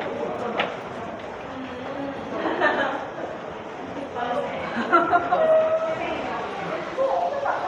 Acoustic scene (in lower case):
crowded indoor space